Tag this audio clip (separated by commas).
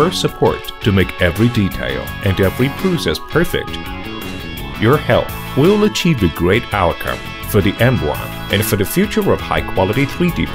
Music, Speech